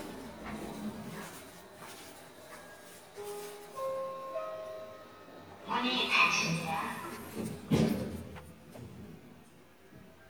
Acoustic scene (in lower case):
elevator